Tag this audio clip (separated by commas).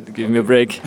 Speech, Human voice